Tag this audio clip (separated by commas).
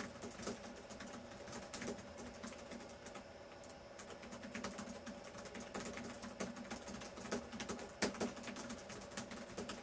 Computer keyboard, Typing